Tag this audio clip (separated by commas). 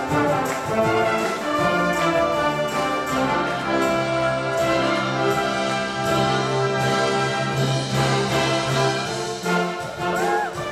Music, Orchestra